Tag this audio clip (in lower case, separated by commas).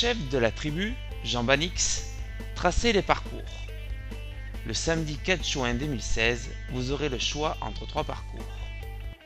music, speech